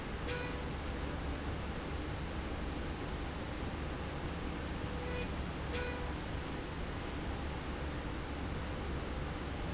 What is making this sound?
slide rail